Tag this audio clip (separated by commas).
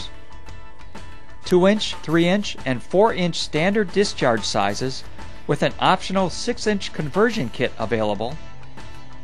Speech, Music